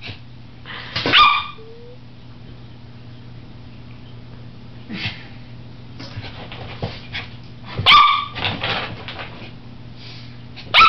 A dog is barking and scuffling, and an adult is laughing quietly